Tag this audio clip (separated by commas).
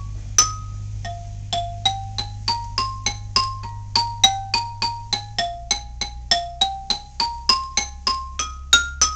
Music, xylophone, Musical instrument, Percussion